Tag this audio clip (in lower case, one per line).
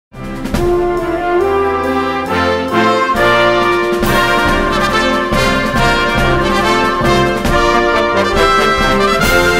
playing french horn